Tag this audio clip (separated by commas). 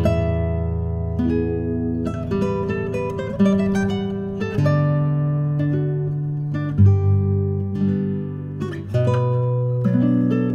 Strum, Musical instrument, Music, Plucked string instrument